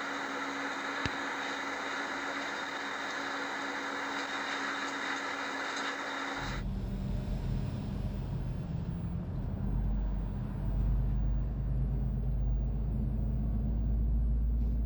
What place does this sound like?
bus